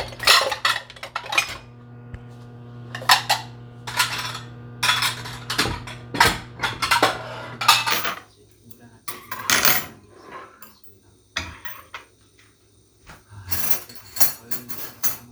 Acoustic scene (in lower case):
kitchen